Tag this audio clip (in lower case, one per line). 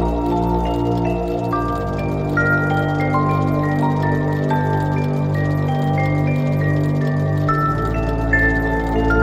music